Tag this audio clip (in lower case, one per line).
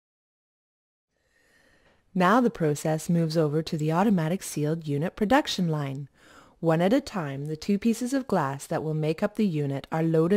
speech